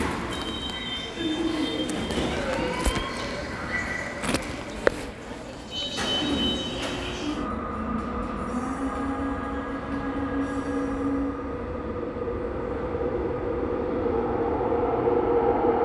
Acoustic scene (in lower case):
subway station